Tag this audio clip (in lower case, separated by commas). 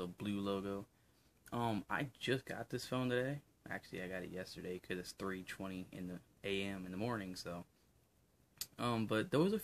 speech, inside a small room